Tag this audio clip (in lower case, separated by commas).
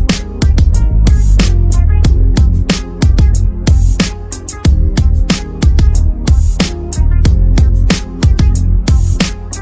music